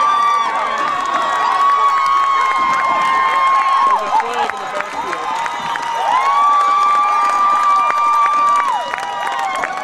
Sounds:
speech

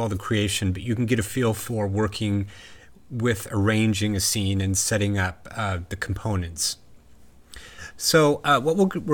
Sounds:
speech

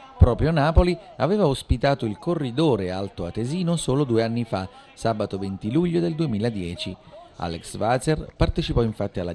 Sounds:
outside, urban or man-made, speech

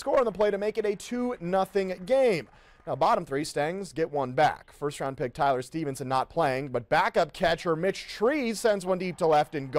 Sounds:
speech

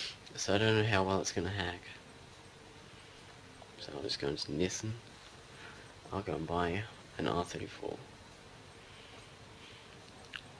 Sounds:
speech

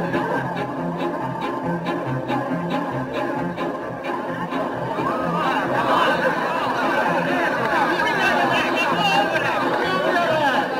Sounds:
music, speech, chatter, inside a large room or hall

